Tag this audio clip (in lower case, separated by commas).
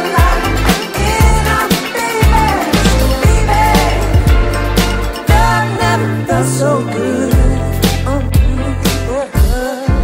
music, soul music